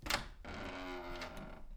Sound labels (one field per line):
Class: door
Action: opening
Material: wooden